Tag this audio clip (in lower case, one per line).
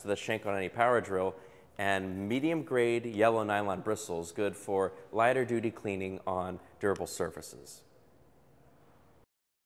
speech